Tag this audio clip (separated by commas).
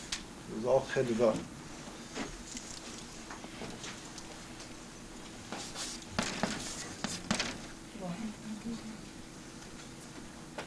Speech